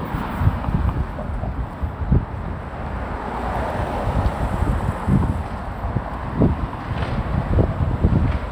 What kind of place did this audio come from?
street